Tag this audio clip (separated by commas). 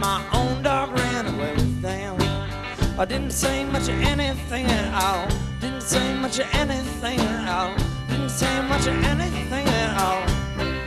Music